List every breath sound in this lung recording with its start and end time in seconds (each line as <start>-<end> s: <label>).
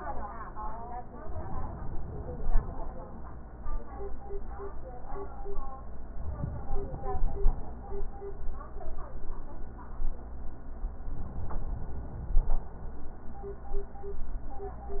1.24-2.90 s: inhalation
6.19-7.75 s: inhalation
11.04-12.60 s: inhalation